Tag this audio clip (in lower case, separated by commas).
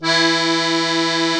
musical instrument, accordion, music